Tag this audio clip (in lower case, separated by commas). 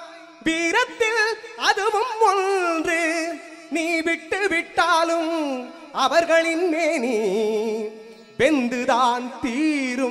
music